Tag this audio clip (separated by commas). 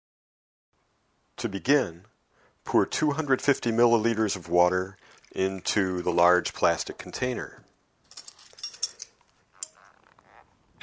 Liquid, Speech, Water, Glass